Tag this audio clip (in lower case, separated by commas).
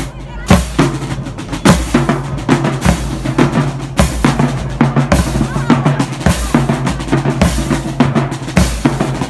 music, speech, percussion, wood block